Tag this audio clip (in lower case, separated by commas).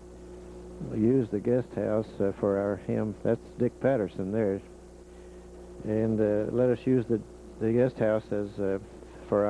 speech